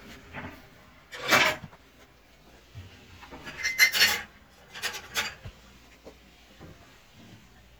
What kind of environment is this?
kitchen